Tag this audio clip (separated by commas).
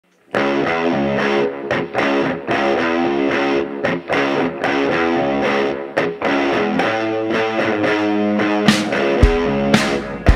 Music